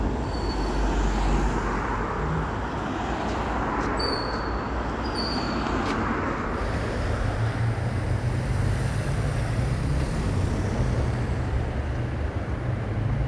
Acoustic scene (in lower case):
street